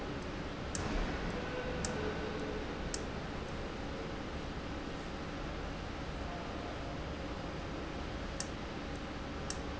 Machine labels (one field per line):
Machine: valve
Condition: abnormal